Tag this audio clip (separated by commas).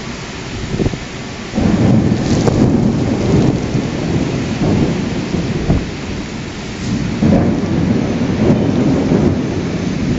Thunder, Thunderstorm, Rain